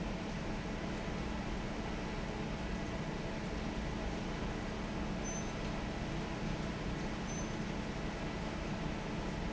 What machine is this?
fan